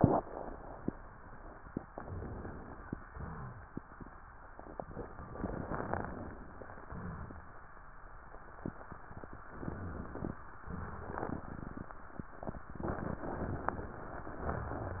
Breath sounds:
Inhalation: 1.89-2.98 s, 5.29-6.34 s, 9.46-10.38 s
Exhalation: 3.08-3.65 s, 6.89-7.60 s
Rhonchi: 3.12-3.67 s
Crackles: 5.29-6.34 s, 9.46-10.38 s

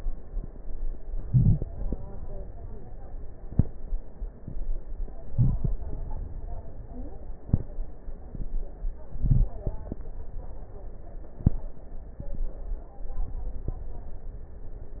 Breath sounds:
Inhalation: 1.15-1.71 s, 5.23-5.80 s, 9.10-9.55 s
Crackles: 9.10-9.55 s

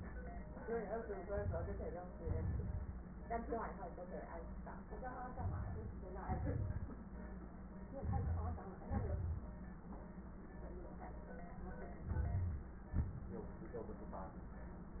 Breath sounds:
Inhalation: 1.25-2.19 s, 5.30-6.13 s, 7.90-8.76 s, 11.98-12.92 s
Exhalation: 2.19-3.14 s, 6.15-7.11 s, 8.76-9.59 s, 12.93-13.56 s
Crackles: 2.19-3.14 s, 5.30-6.13 s, 6.15-7.11 s, 7.90-8.76 s, 8.76-9.59 s, 11.98-12.92 s

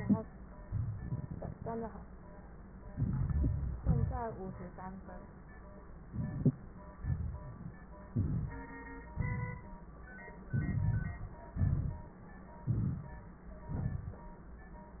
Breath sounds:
Inhalation: 2.83-3.76 s, 6.11-6.57 s, 8.12-8.71 s, 10.51-11.40 s, 12.68-13.21 s
Exhalation: 3.79-4.65 s, 6.98-7.57 s, 9.16-9.85 s, 11.57-12.22 s, 13.72-14.25 s

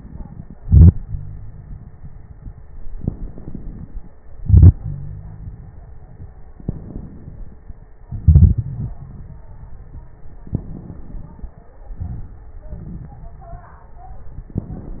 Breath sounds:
Inhalation: 2.94-4.13 s, 6.64-7.90 s, 10.49-11.75 s
Exhalation: 0.58-1.89 s, 4.43-5.60 s, 8.06-9.33 s, 12.01-13.25 s
Wheeze: 0.98-1.88 s, 4.79-5.59 s
Crackles: 2.94-4.13 s, 12.01-13.25 s

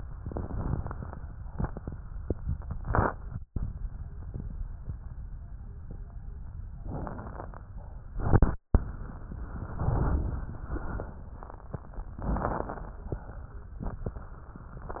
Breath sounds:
Inhalation: 0.23-1.14 s, 6.81-7.72 s, 12.24-13.05 s
Exhalation: 13.11-13.83 s
Crackles: 0.23-1.14 s, 6.81-7.72 s, 12.24-13.05 s

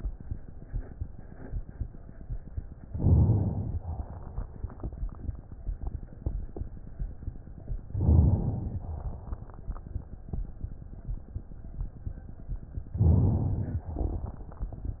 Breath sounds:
Inhalation: 2.88-3.78 s, 7.93-8.79 s, 12.98-13.87 s
Exhalation: 3.78-4.44 s, 8.79-9.43 s, 13.87-14.46 s

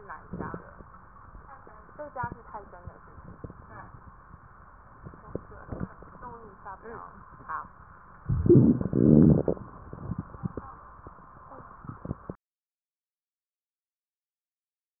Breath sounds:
Inhalation: 8.29-8.92 s
Exhalation: 8.93-9.57 s
Crackles: 8.29-8.92 s, 8.93-9.57 s

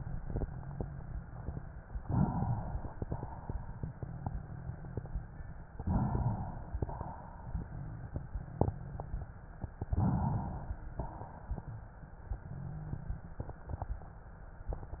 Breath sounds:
Inhalation: 2.04-3.00 s, 5.80-6.76 s, 9.95-10.90 s
Exhalation: 3.04-4.13 s, 6.80-8.01 s, 11.00-12.21 s

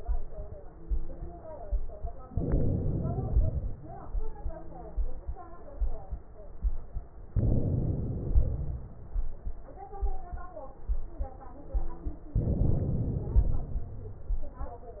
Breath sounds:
Inhalation: 2.26-3.29 s, 7.35-8.27 s, 12.37-13.36 s
Exhalation: 3.29-4.07 s, 8.27-9.08 s, 13.36-14.23 s

